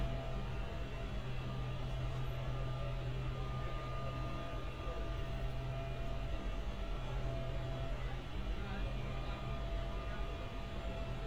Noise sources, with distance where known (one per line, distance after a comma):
person or small group talking, far